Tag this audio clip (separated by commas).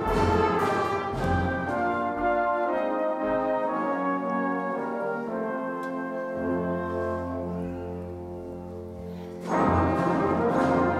Brass instrument, Orchestra, inside a large room or hall, Classical music, Music